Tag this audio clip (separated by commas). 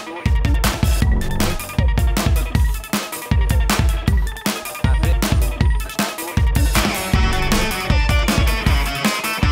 Speech, Drum and bass, Music